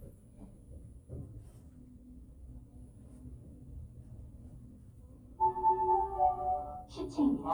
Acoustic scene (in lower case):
elevator